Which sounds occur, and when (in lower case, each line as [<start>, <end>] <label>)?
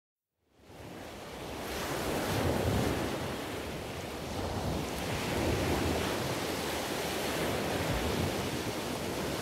[0.62, 9.41] surf